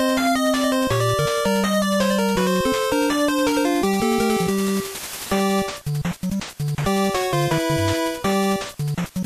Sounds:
music

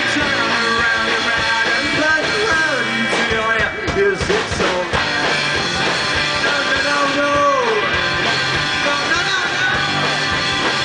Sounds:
whoop, music

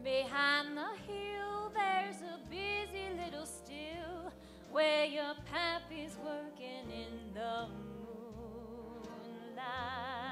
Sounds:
lullaby

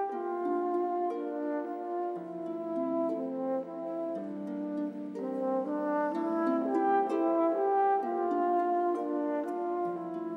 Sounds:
playing french horn, brass instrument, french horn

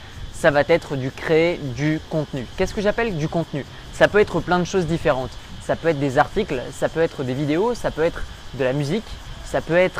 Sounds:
speech

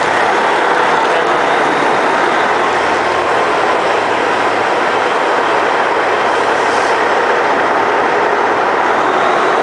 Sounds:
train, speech

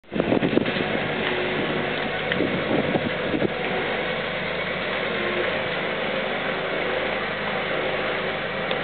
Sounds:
vehicle, truck

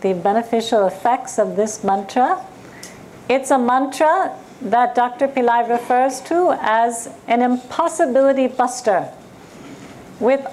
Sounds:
speech

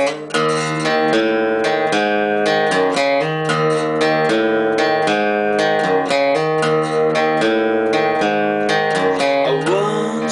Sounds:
plucked string instrument, music, strum, electric guitar, musical instrument, guitar

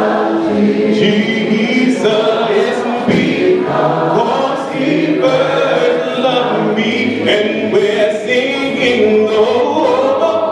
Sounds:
male singing, choir

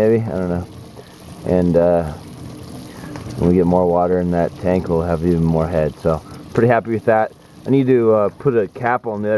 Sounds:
rain

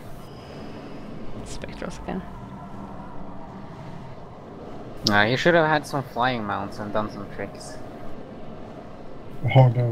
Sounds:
speech

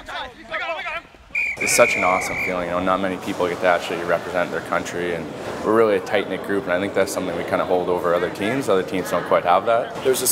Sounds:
male speech, outside, urban or man-made, speech

